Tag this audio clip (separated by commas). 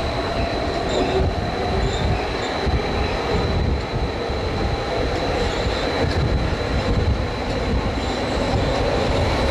Rail transport, outside, urban or man-made, Train wheels squealing, Vehicle, Train